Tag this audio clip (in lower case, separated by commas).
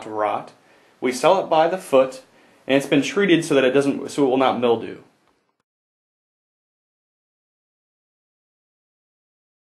speech